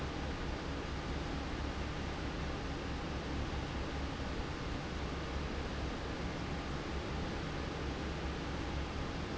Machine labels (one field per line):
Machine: fan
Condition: normal